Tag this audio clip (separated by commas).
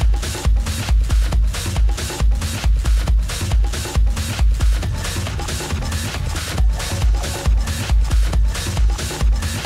Music, Sound effect